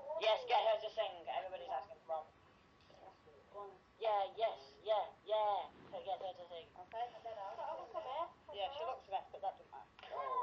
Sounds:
Speech

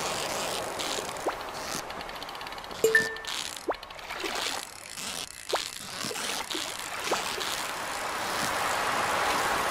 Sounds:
Rain on surface

